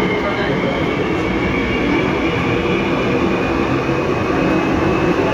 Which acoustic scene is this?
subway train